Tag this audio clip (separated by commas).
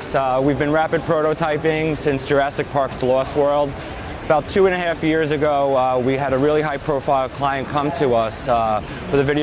Speech